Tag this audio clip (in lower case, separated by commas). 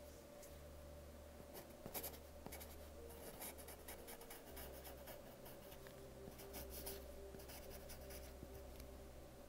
writing